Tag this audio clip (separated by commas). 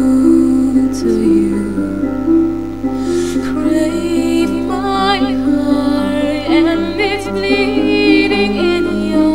Female singing, Music